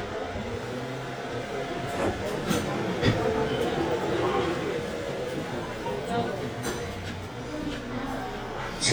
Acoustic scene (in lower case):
subway train